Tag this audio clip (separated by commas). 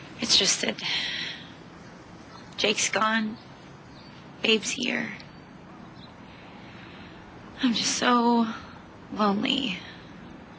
outside, rural or natural, Speech